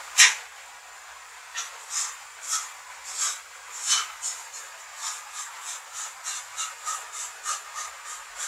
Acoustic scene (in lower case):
restroom